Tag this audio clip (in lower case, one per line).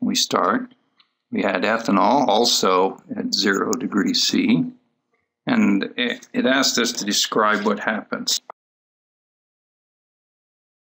speech